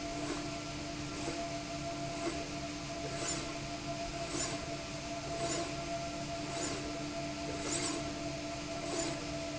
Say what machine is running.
slide rail